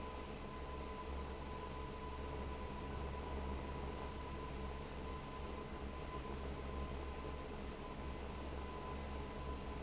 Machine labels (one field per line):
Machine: fan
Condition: abnormal